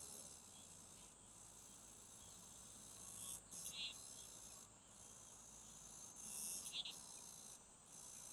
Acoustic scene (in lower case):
park